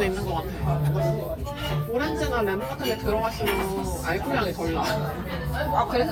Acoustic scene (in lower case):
crowded indoor space